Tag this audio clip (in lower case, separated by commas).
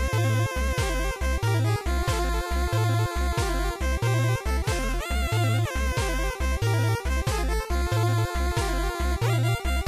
music